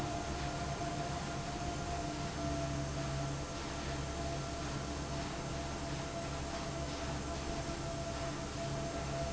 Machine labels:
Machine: fan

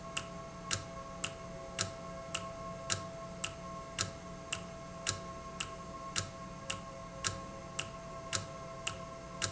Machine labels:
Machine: valve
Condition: normal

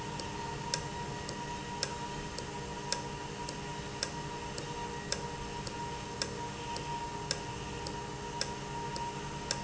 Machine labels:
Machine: valve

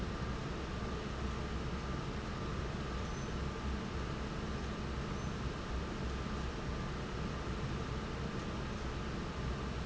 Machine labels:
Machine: fan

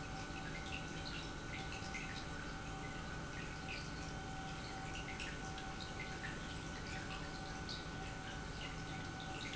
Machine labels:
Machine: pump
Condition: normal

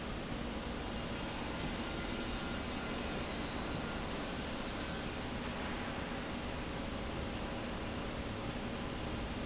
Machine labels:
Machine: slide rail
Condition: normal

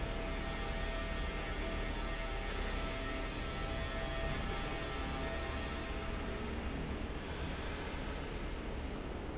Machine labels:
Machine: fan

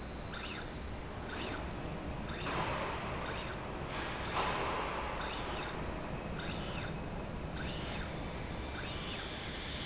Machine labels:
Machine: slide rail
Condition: normal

